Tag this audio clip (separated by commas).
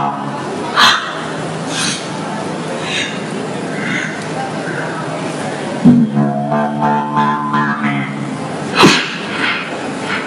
Beatboxing, Music